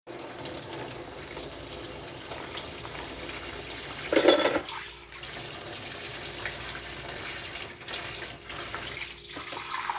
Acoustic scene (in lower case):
kitchen